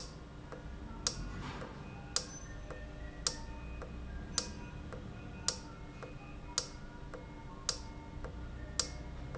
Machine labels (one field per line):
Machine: valve